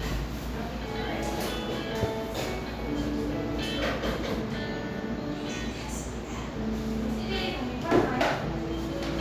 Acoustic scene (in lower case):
cafe